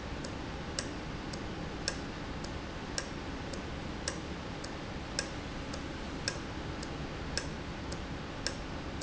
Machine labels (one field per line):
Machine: valve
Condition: normal